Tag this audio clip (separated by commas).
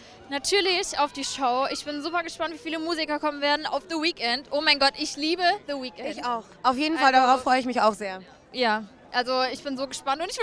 Speech